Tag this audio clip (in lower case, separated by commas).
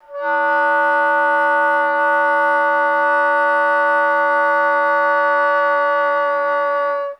music, woodwind instrument, musical instrument